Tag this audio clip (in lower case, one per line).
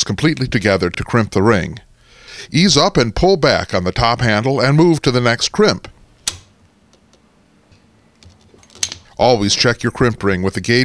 tools
speech